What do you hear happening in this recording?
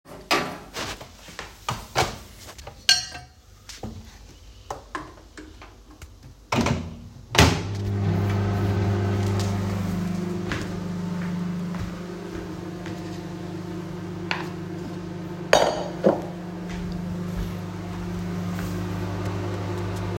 While I am cooking, I want to defrost the chicken so I kept the chicken in the plate and then put it inside the oven and turned ON the microwave